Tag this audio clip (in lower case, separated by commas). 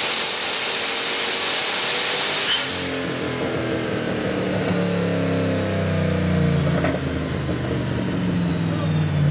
car, inside a large room or hall, vehicle